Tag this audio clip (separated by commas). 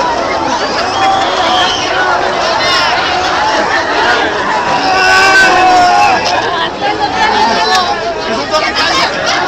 Speech